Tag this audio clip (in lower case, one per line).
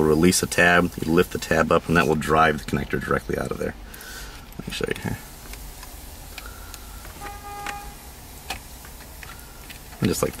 car
vehicle
speech
outside, urban or man-made